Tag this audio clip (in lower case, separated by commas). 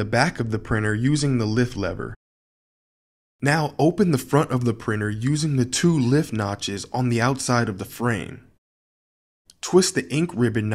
speech